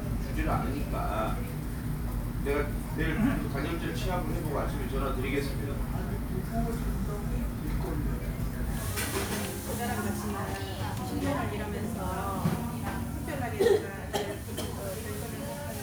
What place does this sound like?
restaurant